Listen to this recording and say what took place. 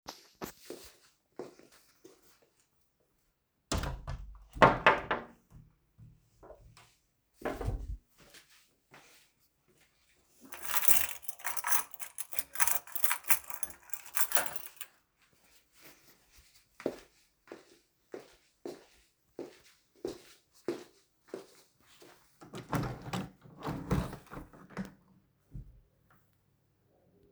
I walked to the front door,opened it, fumbled with keys, I walked come back throught living room and opened the window.